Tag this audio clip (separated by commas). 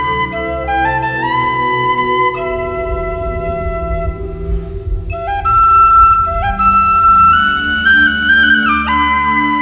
Flute, Music